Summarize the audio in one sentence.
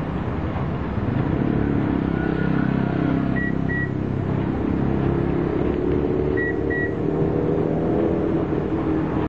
Multiple beeps and vehicles driving by